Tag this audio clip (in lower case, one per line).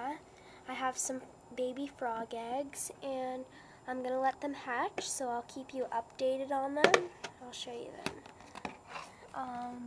speech